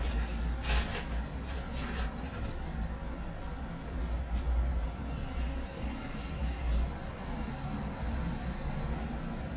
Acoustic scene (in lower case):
residential area